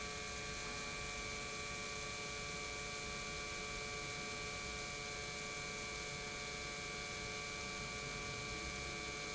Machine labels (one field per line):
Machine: pump